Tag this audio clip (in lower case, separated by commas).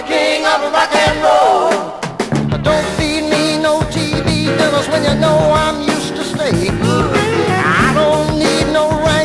music, rock and roll